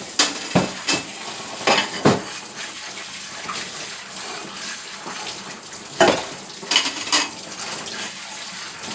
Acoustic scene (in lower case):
kitchen